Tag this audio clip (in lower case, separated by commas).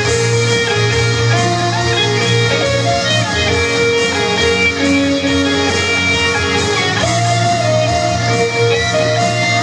music, musical instrument, guitar, electric guitar, plucked string instrument, strum